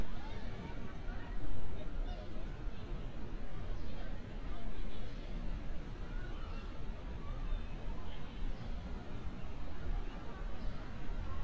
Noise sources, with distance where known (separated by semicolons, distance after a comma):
unidentified human voice